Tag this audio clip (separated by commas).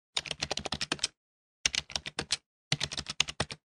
Sound effect